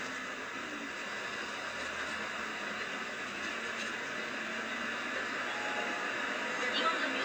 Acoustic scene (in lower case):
bus